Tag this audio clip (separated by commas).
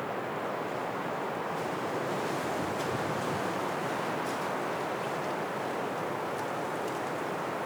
Wind